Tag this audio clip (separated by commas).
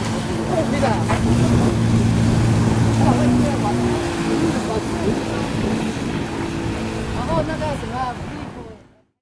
Vehicle, Water vehicle, Speech, speedboat